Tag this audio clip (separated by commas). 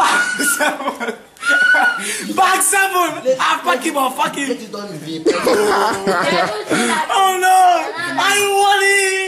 Speech, chortle